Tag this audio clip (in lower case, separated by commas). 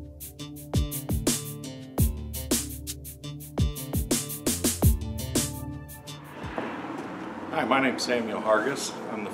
speech, music